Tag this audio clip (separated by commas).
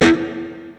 Electric guitar, Musical instrument, Plucked string instrument, Guitar, Music